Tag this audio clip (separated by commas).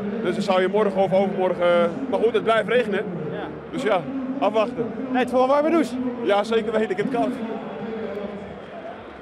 Speech